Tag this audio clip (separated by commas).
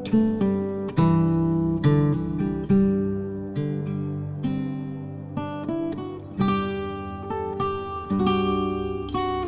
Music